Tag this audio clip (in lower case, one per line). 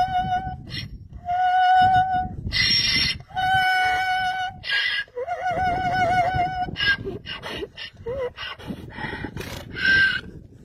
donkey